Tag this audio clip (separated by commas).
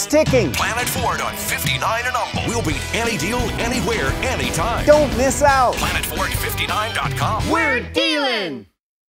Music, Speech